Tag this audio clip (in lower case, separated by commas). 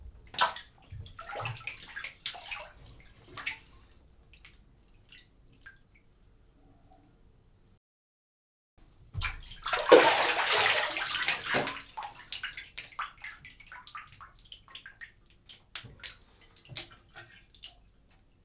bathtub (filling or washing), domestic sounds